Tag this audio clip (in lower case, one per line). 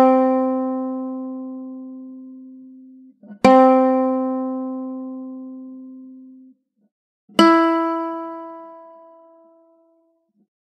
music